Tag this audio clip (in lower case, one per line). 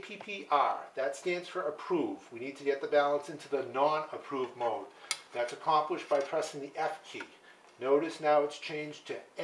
inside a small room
speech